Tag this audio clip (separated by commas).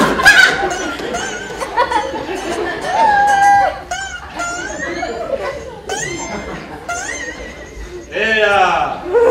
inside a public space